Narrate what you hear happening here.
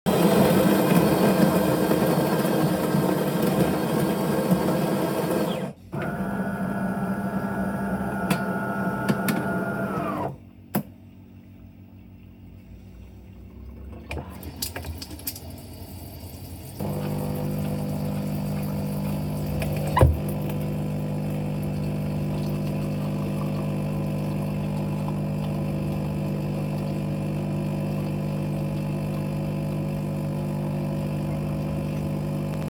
I started to make a coffee with my fully automatic coffee machine. During that, I poured some water from the nearby water tap to enjoy an additional drink.